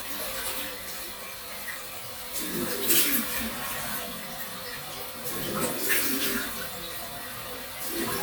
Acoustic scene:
restroom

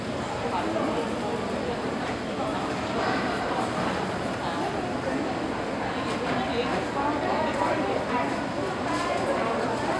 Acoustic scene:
crowded indoor space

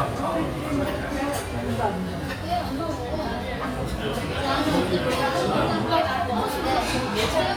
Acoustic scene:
restaurant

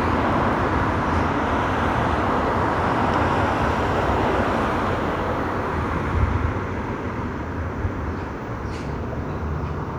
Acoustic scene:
street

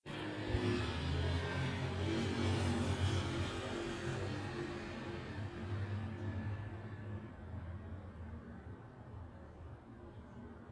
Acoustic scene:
residential area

